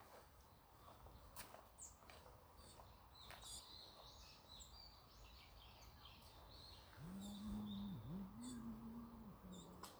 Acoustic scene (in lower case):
park